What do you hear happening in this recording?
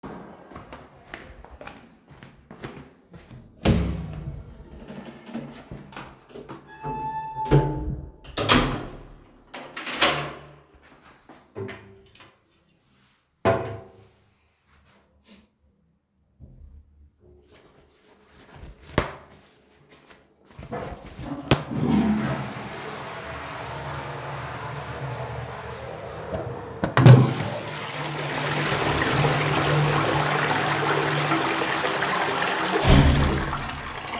I went to the toilet, used it and then used the flush and then came back.